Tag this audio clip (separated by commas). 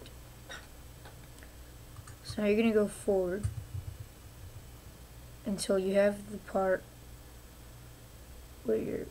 Speech